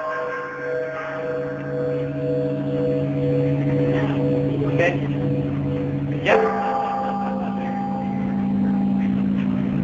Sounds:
bell, speech

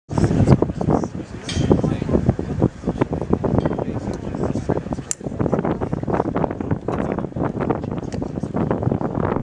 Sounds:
wind noise (microphone), wind

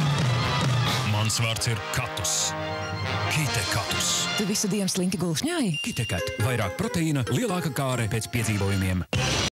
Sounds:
music, speech

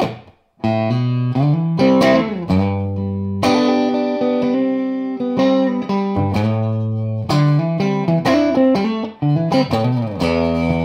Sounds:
plucked string instrument, musical instrument, strum, music, electric guitar

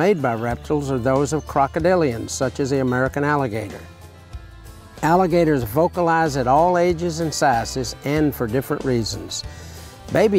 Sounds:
music, speech

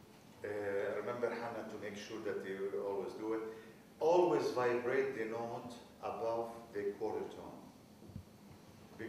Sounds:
speech

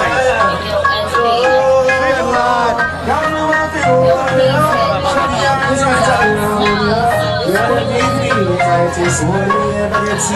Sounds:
speech, music

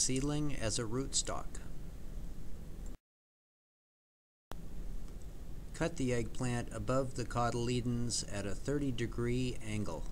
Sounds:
speech

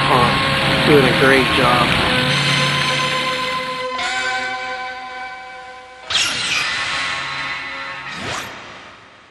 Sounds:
water

